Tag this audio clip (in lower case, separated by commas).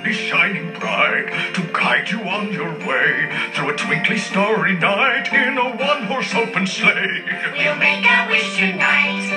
speech, christian music, television, music, christmas music